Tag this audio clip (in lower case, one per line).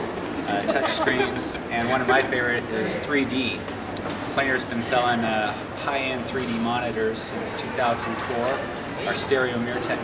speech